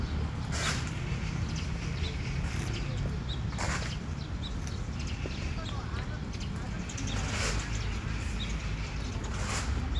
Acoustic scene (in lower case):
park